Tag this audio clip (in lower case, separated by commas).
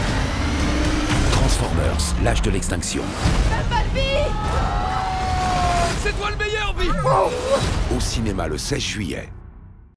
music, speech